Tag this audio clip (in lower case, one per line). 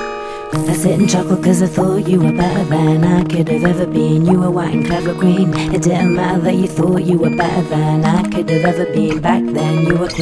music